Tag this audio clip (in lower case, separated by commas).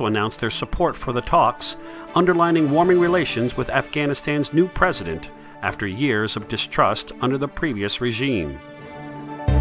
music, speech